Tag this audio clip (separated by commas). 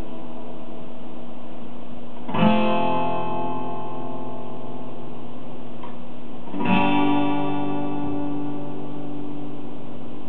Plucked string instrument, Guitar, Music, Musical instrument, Strum